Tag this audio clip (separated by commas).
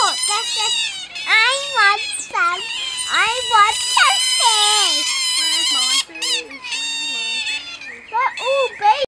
Speech, pets